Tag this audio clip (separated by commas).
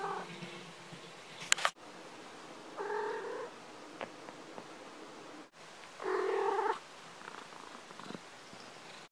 Caterwaul, Animal, pets, Cat